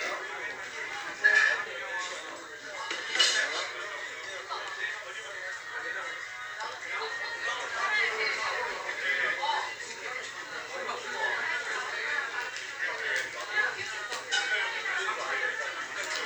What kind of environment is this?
crowded indoor space